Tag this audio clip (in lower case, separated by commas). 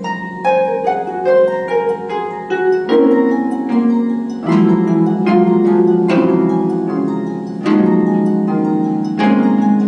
harp, music, playing harp